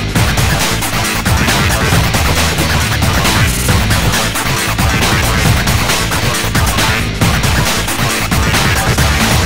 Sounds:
Music

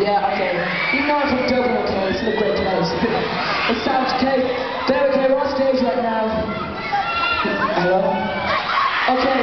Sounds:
Speech

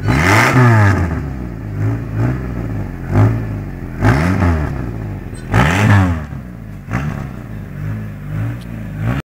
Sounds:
driving motorcycle, Motorcycle

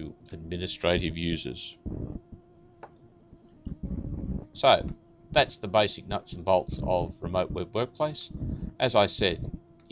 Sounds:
Fly, Insect, bee or wasp

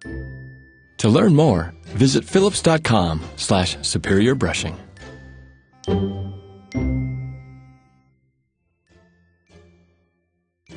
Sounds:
Music, Speech

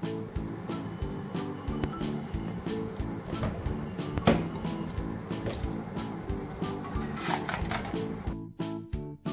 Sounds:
pumping water

